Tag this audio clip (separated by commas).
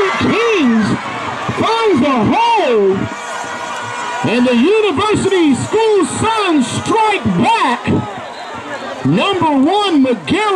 Speech